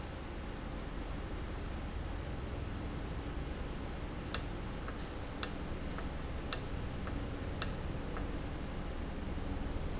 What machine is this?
valve